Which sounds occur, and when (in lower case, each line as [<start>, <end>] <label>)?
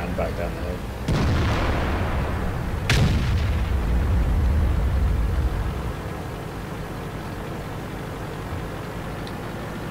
[0.00, 9.90] motor vehicle (road)
[0.00, 9.90] video game sound
[0.00, 9.90] wind
[0.14, 0.77] man speaking
[1.01, 2.60] artillery fire
[2.85, 3.79] artillery fire
[4.36, 4.49] tick
[9.22, 9.33] tick